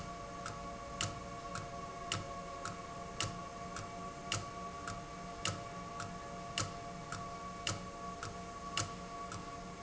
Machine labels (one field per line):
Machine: valve